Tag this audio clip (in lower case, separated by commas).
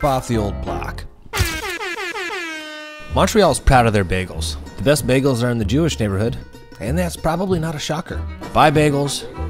speech, music